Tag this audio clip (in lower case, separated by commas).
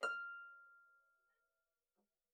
harp, music, musical instrument